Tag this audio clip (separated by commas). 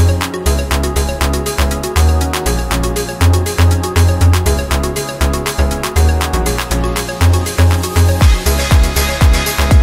Music, Electronica